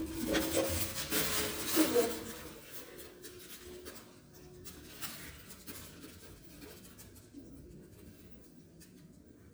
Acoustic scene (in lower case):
elevator